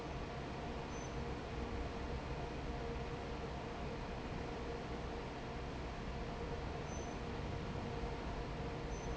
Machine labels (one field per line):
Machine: fan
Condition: normal